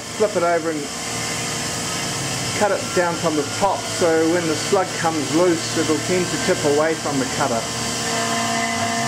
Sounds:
speech

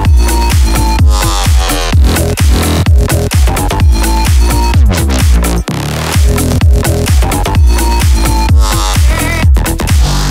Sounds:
music
sound effect

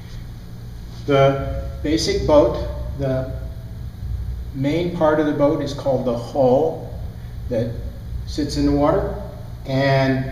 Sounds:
speech

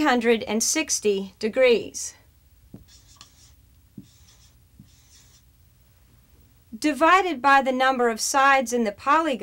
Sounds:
speech
writing

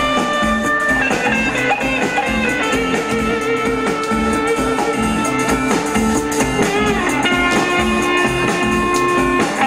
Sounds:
music
blues

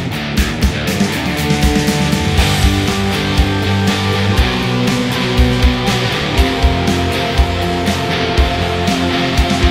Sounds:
music

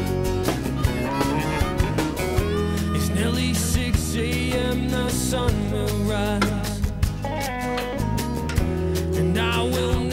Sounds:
music

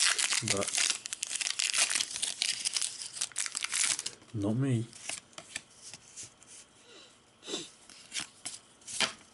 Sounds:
inside a small room
speech

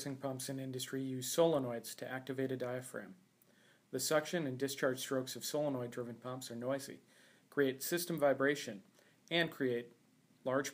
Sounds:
speech

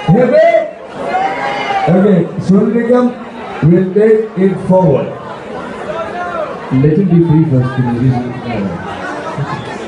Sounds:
speech
conversation
male speech

